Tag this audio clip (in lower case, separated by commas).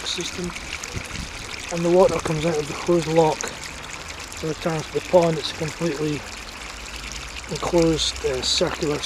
faucet, water